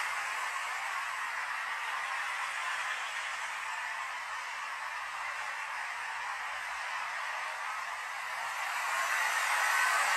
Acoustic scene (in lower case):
street